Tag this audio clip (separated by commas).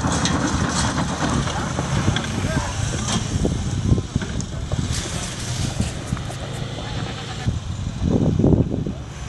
Speech